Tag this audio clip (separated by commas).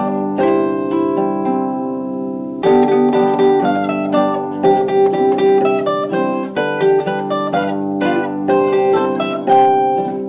Zither, Pizzicato